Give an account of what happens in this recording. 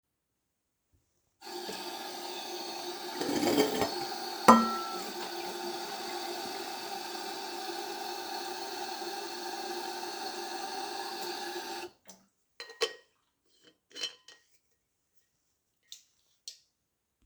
I turned on the water grabbed a metal bottle and filled it up.